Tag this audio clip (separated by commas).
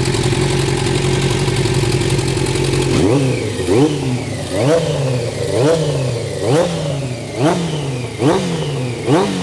Vehicle, Accelerating